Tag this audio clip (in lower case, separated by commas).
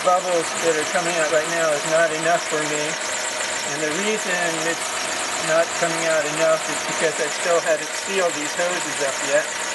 vehicle, motor vehicle (road), engine, speech